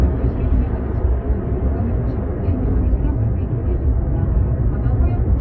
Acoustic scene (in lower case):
car